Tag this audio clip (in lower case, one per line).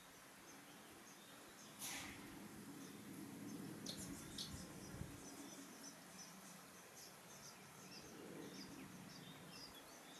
barn swallow calling